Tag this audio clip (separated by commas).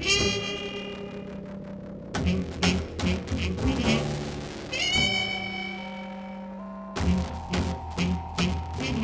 Double bass, Music, Jazz